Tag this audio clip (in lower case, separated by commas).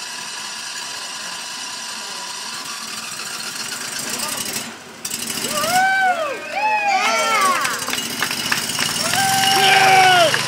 speech